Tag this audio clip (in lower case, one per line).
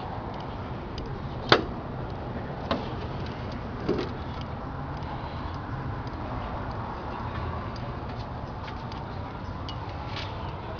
speech